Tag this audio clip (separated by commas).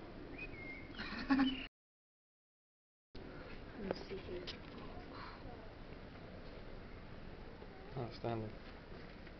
Animal, Speech